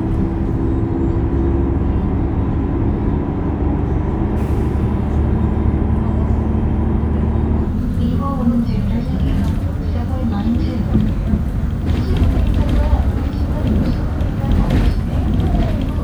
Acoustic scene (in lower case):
bus